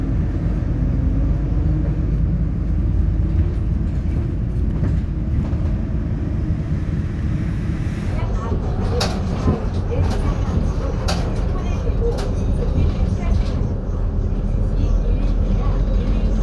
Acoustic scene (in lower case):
bus